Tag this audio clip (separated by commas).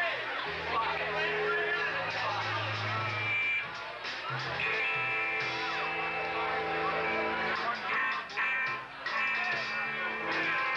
Speech, Music